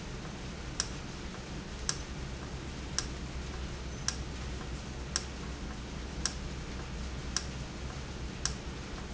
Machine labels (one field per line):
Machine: valve